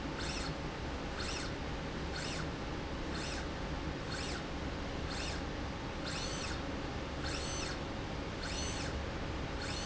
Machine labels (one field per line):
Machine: slide rail